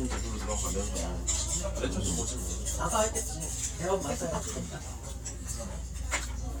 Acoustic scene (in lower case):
restaurant